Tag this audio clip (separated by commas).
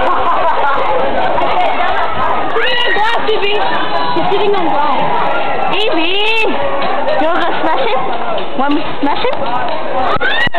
Speech, outside, urban or man-made, Children playing